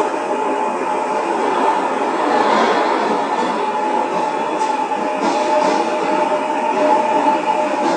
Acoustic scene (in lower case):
subway station